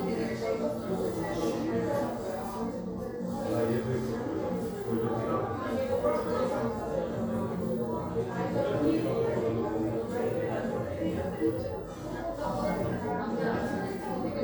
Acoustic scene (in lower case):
crowded indoor space